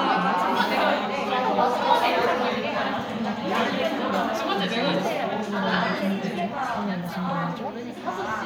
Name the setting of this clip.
crowded indoor space